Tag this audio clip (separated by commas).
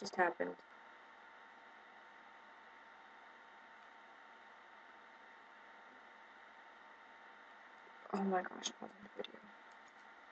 Speech